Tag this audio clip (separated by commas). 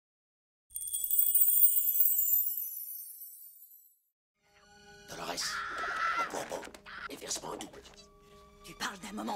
people battle cry